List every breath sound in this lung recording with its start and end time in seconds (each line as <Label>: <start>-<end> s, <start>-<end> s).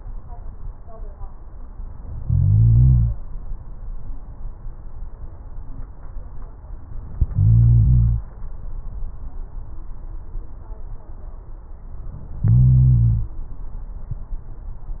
Inhalation: 2.16-3.17 s, 7.21-8.22 s, 12.40-13.40 s